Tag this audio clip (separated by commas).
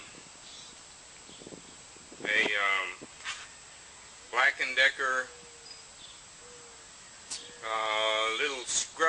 Speech